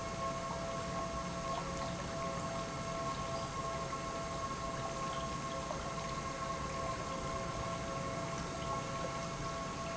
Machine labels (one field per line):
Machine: pump